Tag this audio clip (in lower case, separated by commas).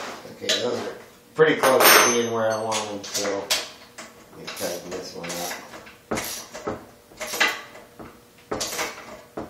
speech, inside a small room